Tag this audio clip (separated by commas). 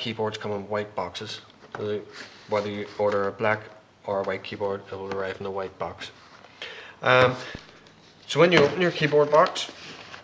Speech